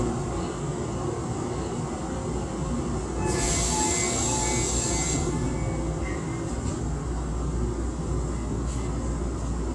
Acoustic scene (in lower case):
subway train